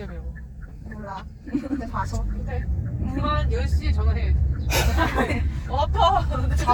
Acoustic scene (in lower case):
car